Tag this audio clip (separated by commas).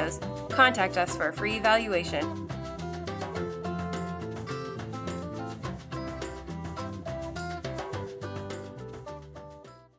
Speech, Music